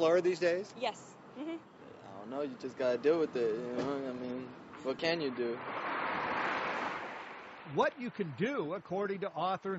Man and woman talking and then car passes by